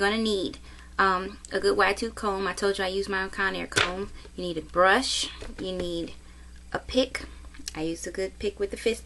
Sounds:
speech

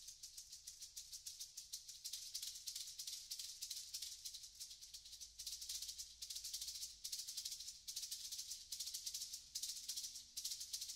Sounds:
maraca, music

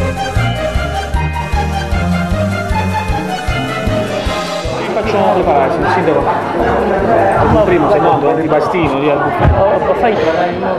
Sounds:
music, speech

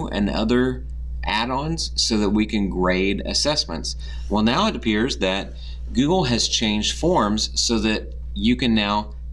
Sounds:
speech

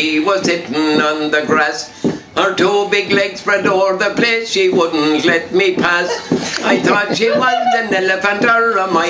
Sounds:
music, country

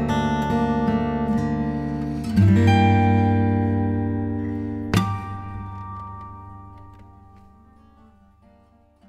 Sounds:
music, plucked string instrument, guitar, musical instrument, strum

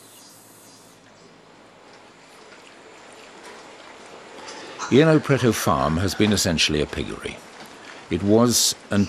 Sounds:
speech, oink

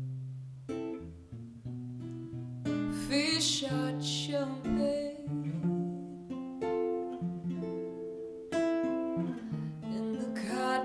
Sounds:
musical instrument, guitar, music

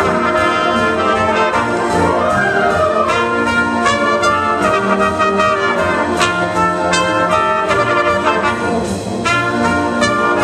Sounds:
playing bugle

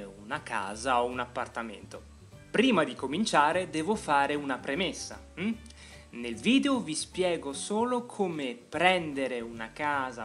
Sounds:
music, speech

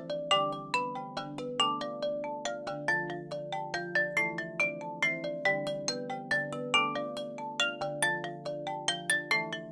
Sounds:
music

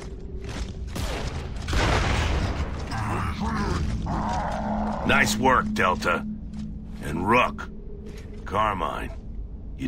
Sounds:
speech

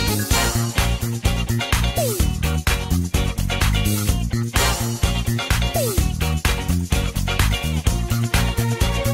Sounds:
music, disco

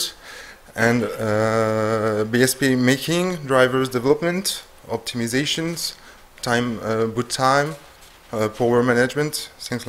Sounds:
speech

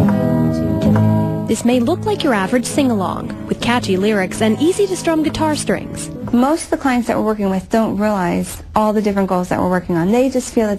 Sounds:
speech, music

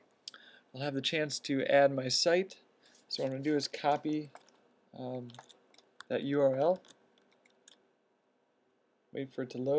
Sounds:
speech

